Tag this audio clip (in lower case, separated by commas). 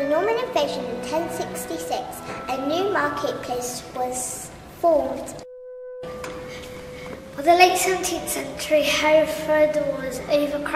music, speech